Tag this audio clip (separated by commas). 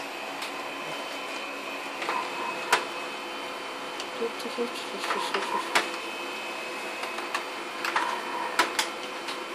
Speech, Printer